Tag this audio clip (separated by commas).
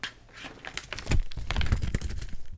Crumpling